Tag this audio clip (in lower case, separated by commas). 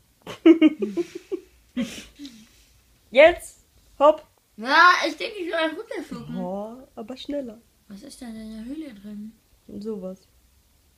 inside a small room, speech